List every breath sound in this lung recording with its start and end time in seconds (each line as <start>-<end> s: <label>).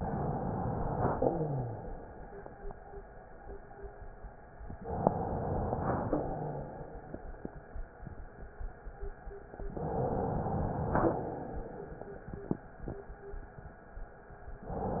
0.00-1.24 s: inhalation
1.24-1.95 s: rhonchi
1.24-2.24 s: exhalation
4.84-6.09 s: inhalation
6.09-7.21 s: exhalation
6.32-6.81 s: rhonchi
9.73-11.03 s: inhalation
11.03-12.26 s: exhalation